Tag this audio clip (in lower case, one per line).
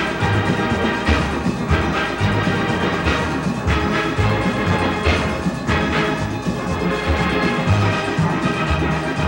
music